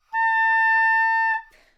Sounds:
wind instrument, musical instrument, music

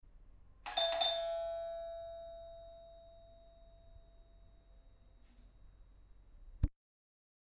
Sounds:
alarm, doorbell, domestic sounds, door

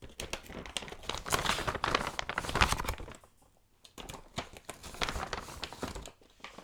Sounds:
crumpling

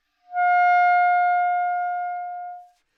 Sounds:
music, woodwind instrument, musical instrument

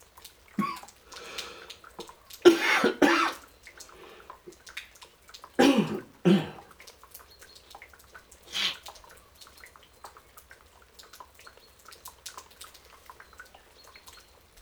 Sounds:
cough, respiratory sounds

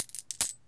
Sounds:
coin (dropping), home sounds

